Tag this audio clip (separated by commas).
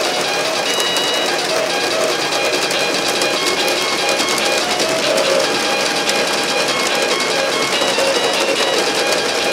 Horse, Music, Clip-clop